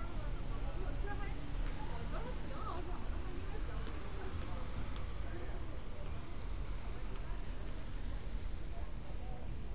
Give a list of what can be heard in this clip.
person or small group talking